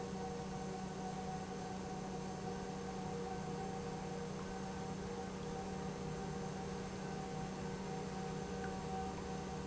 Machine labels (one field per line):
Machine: pump